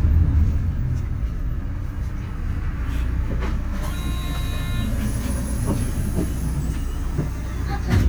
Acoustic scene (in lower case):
bus